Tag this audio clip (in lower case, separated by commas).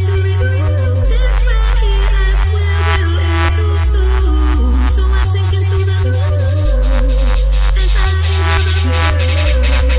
drum kit, music, drum, musical instrument